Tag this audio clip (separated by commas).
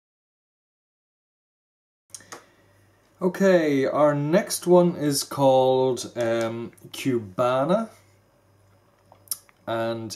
Speech